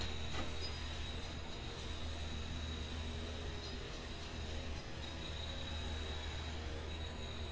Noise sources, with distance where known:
background noise

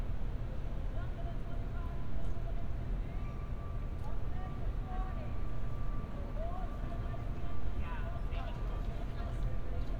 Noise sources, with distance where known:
person or small group talking, near
person or small group shouting, far

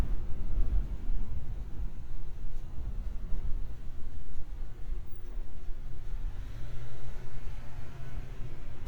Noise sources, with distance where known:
engine of unclear size

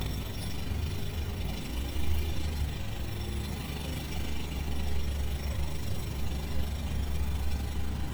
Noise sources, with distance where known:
jackhammer, near

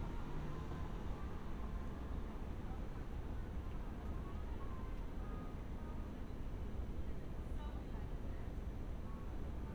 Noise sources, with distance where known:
music from a fixed source, far
unidentified human voice, far

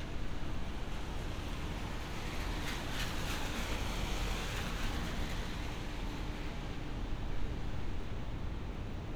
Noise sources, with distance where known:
medium-sounding engine, near

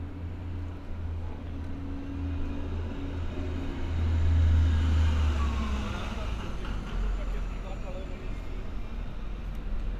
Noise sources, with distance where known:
large-sounding engine, near
unidentified impact machinery

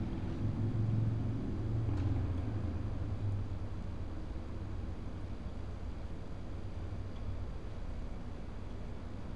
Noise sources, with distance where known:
medium-sounding engine

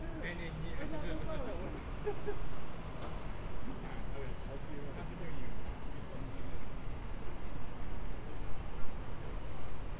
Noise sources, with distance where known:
person or small group talking, near

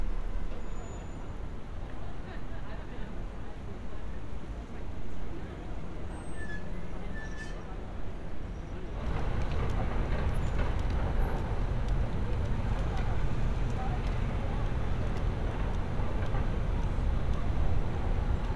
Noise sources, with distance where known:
person or small group talking

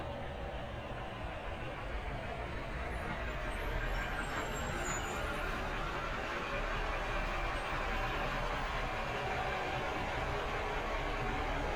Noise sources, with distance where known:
large-sounding engine, near

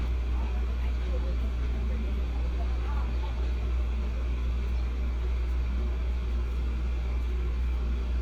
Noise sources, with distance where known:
person or small group talking

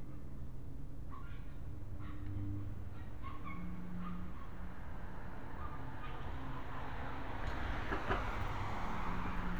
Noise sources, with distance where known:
engine of unclear size

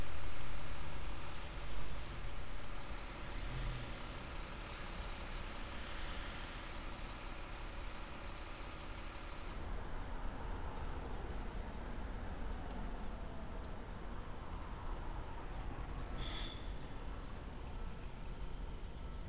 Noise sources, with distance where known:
large-sounding engine

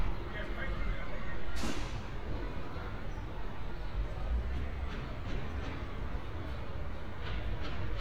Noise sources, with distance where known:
unidentified impact machinery, far
person or small group talking, far

